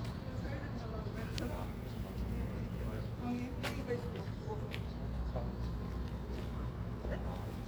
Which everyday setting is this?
residential area